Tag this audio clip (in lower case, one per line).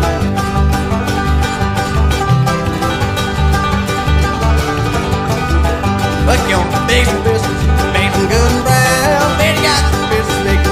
music